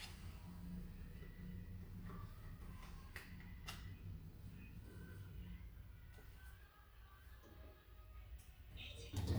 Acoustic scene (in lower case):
elevator